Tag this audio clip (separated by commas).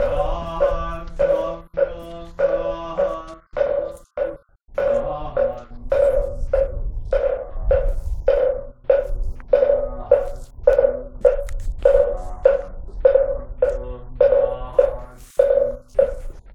Singing, Human voice